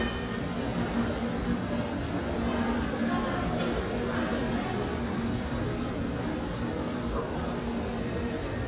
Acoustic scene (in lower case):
crowded indoor space